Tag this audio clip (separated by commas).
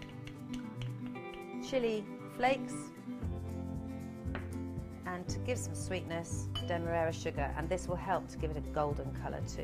Speech, Music